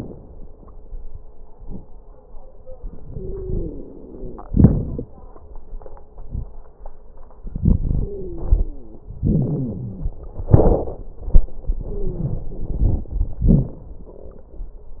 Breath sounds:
3.08-4.45 s: inhalation
3.08-4.45 s: wheeze
4.46-5.10 s: exhalation
4.46-5.10 s: crackles
7.45-9.02 s: inhalation
8.03-9.06 s: wheeze
9.23-10.24 s: exhalation
9.23-10.24 s: wheeze
11.71-13.12 s: inhalation
11.81-12.40 s: wheeze
13.43-13.85 s: exhalation
13.43-13.85 s: crackles

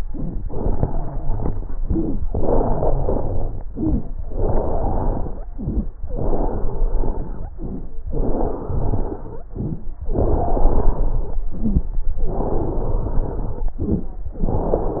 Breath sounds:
0.00-0.36 s: inhalation
0.00-0.36 s: crackles
0.40-1.73 s: exhalation
0.40-1.73 s: wheeze
1.82-2.18 s: inhalation
1.82-2.18 s: crackles
2.26-3.59 s: exhalation
2.26-3.59 s: wheeze
3.72-4.08 s: inhalation
3.72-4.08 s: crackles
4.25-5.49 s: exhalation
4.25-5.49 s: wheeze
5.56-5.92 s: inhalation
5.56-5.92 s: crackles
6.10-7.47 s: exhalation
6.10-7.47 s: wheeze
7.58-7.94 s: inhalation
7.58-7.94 s: crackles
8.09-9.46 s: exhalation
8.09-9.46 s: wheeze
9.57-9.93 s: inhalation
9.57-9.93 s: crackles
10.06-11.43 s: exhalation
10.06-11.43 s: wheeze
11.54-11.95 s: inhalation
11.54-11.95 s: crackles
12.23-13.72 s: exhalation
12.23-13.72 s: wheeze
13.83-14.24 s: inhalation
13.83-14.24 s: crackles
14.38-15.00 s: exhalation
14.38-15.00 s: wheeze

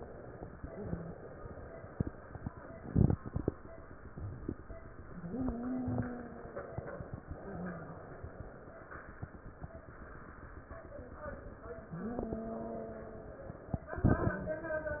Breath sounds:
0.63-1.14 s: wheeze
5.14-6.78 s: wheeze
11.88-13.51 s: wheeze

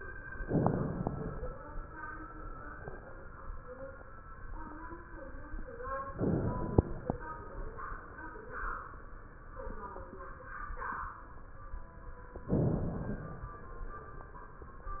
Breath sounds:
0.40-1.55 s: inhalation
6.08-7.26 s: inhalation
12.44-13.62 s: inhalation

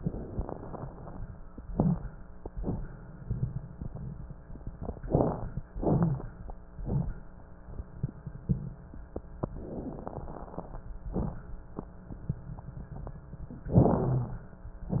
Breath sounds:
1.63-2.47 s: inhalation
1.65-2.13 s: crackles
2.45-3.28 s: exhalation
4.97-5.62 s: crackles
4.99-5.64 s: inhalation
5.77-6.42 s: exhalation
5.77-6.42 s: crackles
13.70-14.57 s: inhalation
13.70-14.57 s: crackles

